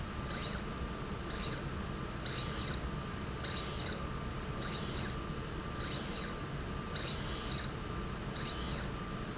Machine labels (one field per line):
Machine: slide rail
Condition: abnormal